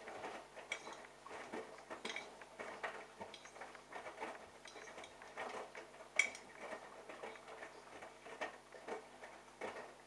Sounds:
inside a small room

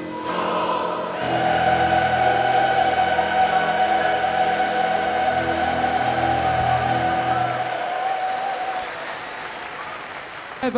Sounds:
Music

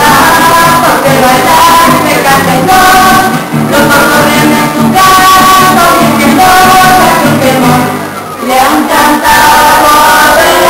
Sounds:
Pizzicato, Musical instrument, Music

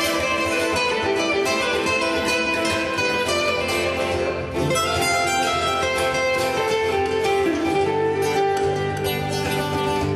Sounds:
Steel guitar, Plucked string instrument, Music, Musical instrument, Guitar, Acoustic guitar

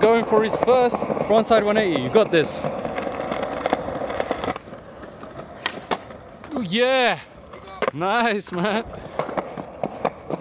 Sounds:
skateboarding

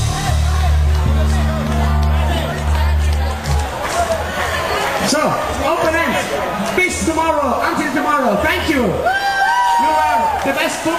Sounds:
Music, inside a large room or hall, Speech

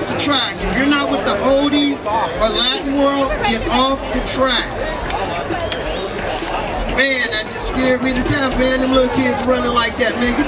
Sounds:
Speech

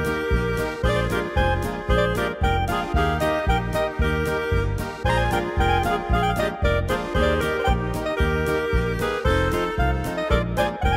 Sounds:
Music

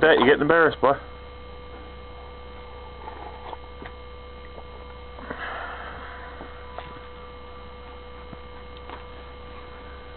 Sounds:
Speech

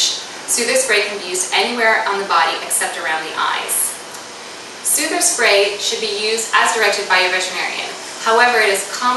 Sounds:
Speech

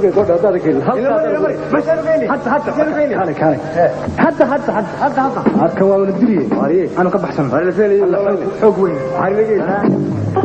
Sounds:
Music, Speech

